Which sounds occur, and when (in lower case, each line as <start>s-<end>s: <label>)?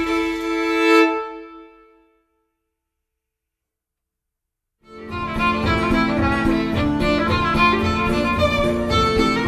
0.0s-3.4s: music
4.8s-9.4s: music